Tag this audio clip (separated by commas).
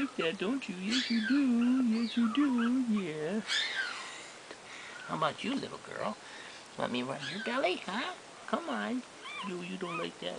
Speech, inside a small room, pets, Dog, Animal